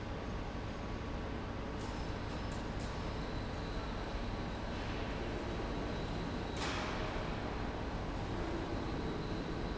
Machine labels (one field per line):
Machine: pump